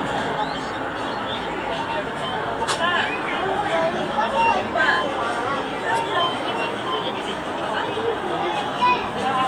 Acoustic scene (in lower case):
park